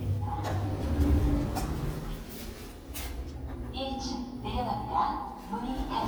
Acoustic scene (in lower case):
elevator